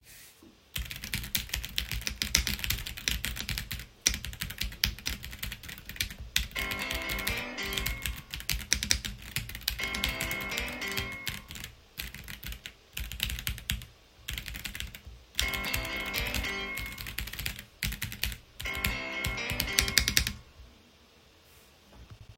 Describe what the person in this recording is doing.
In the bedroom, a laptop is being used while the device stays in one place. Continuous keyboard typing is heard, with a laptop fan in the background. Midway through, a phone starts ringing while the typing continues briefly, then tapers off.